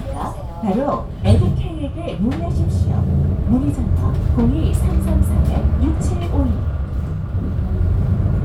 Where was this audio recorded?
on a bus